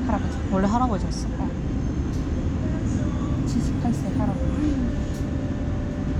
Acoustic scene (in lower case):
bus